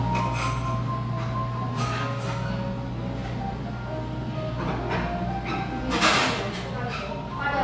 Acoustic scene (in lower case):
crowded indoor space